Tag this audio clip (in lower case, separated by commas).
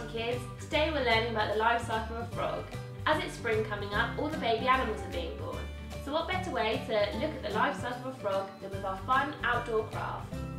music, speech